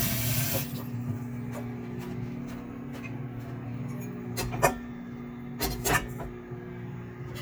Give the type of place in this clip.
kitchen